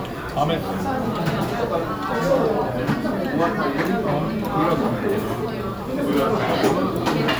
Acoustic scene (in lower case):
restaurant